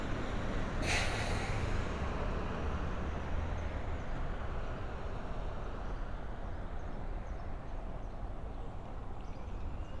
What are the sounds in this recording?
large-sounding engine